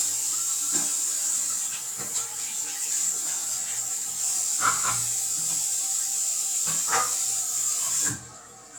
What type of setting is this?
restroom